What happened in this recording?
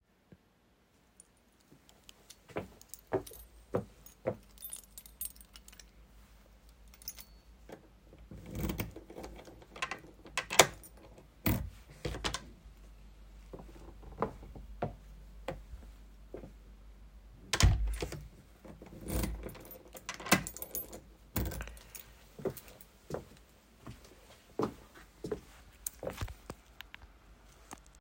i walked to my front door, used my keys to open the door, got inside, closed the door , locked the door,walked inside